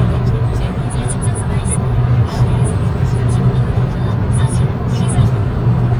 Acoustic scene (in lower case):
car